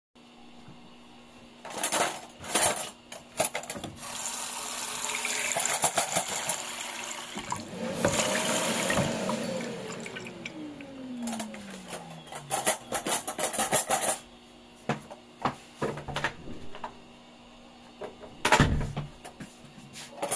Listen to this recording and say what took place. I handled several pieces of cutlery and dishes while water was running in the sink. The microwave was opened and started. A vacuum cleaner was briefly used and I then opened the kitchen door.